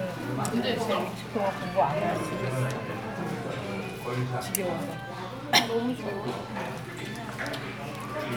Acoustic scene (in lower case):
crowded indoor space